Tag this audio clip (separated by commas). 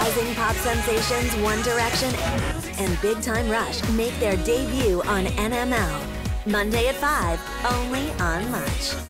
Music, Speech